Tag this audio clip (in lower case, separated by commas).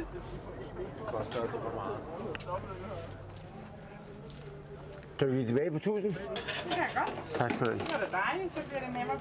speech